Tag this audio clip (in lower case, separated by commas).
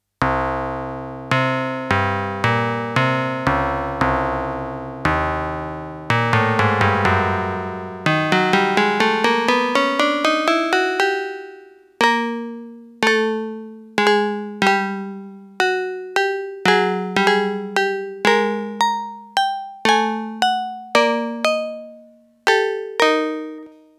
musical instrument, keyboard (musical), music